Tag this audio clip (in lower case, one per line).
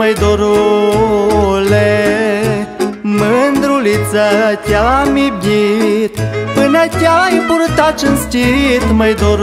music